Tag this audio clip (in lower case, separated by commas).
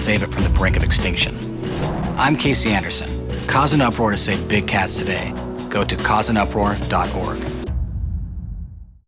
music, speech